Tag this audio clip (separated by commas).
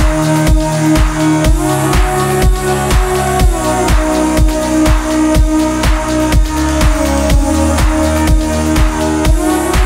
Music